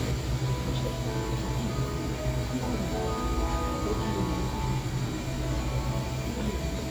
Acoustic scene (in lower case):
cafe